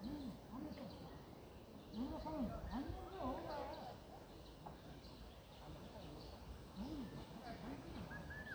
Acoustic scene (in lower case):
park